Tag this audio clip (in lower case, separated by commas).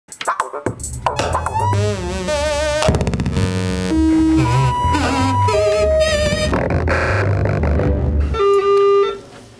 synthesizer, musical instrument, music, playing synthesizer